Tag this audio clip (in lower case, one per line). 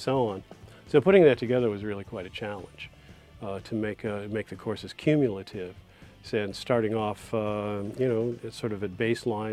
speech
music